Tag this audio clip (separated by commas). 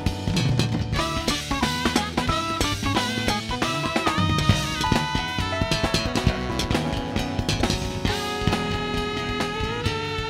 Music